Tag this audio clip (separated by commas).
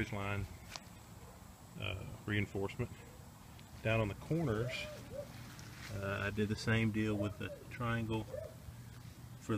Speech, outside, rural or natural